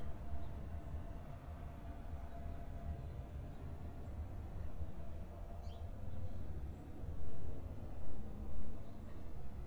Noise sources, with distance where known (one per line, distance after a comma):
background noise